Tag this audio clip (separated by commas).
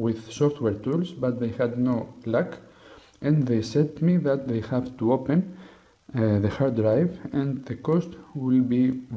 Speech